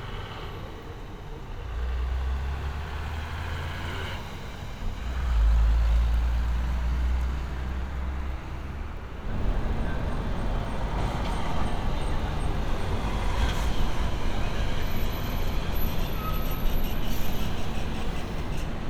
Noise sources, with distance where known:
large-sounding engine

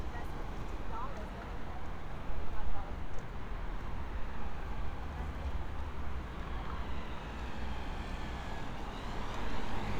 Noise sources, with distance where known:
person or small group talking

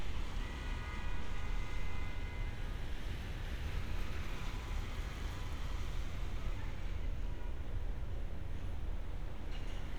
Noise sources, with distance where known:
car horn, far

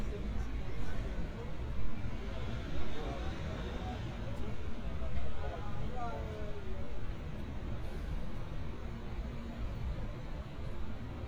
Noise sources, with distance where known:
person or small group talking

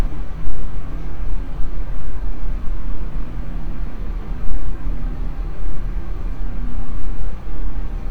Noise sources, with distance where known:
engine of unclear size

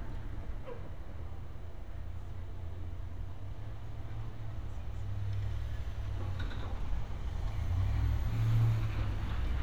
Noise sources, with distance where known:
engine of unclear size; non-machinery impact

